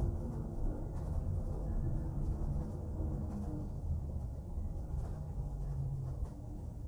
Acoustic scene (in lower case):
bus